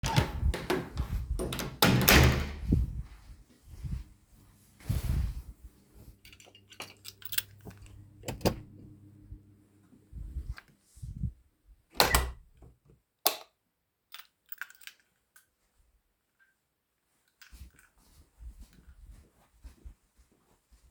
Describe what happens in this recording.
I went downstairs, opened and closed the hallway door, retreived the car keys, opened and closed the garage door and turned the lights on.